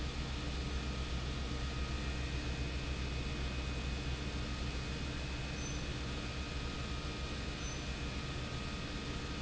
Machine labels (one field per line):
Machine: pump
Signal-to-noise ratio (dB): -6 dB